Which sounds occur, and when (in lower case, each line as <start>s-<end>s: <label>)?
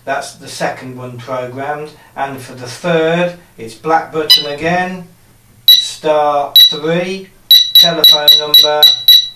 0.0s-1.9s: male speech
0.0s-9.3s: mechanisms
1.9s-2.1s: breathing
2.1s-3.4s: male speech
3.6s-5.1s: male speech
4.3s-4.6s: bleep
5.1s-5.9s: generic impact sounds
5.6s-6.0s: bleep
6.0s-7.4s: male speech
6.5s-6.9s: bleep
7.5s-9.3s: bleep
7.8s-9.0s: male speech